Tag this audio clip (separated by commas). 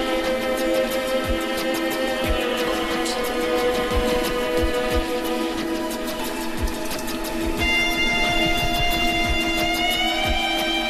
Music